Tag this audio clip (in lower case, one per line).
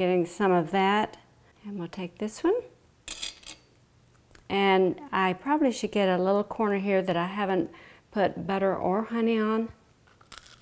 speech
inside a small room